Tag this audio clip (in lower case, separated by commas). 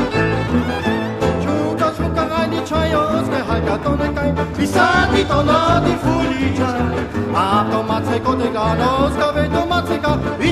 music, jazz